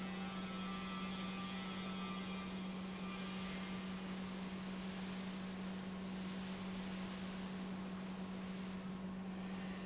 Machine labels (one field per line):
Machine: pump